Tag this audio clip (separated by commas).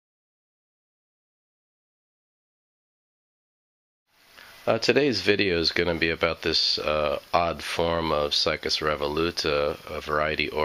Speech